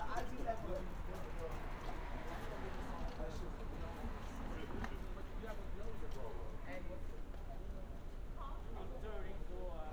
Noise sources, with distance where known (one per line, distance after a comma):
person or small group talking